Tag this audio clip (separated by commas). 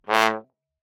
Brass instrument, Music, Musical instrument